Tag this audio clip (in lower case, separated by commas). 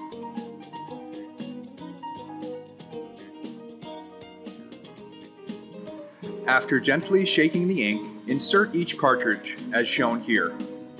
speech, music